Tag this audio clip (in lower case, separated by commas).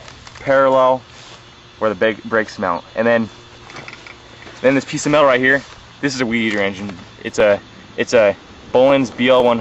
speech